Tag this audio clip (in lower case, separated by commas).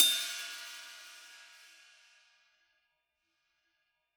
hi-hat, music, musical instrument, cymbal, percussion